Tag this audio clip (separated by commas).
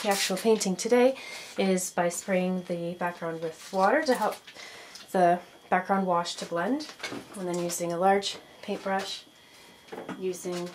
Speech